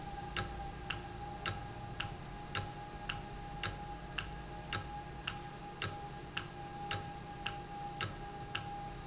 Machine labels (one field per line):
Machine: valve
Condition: normal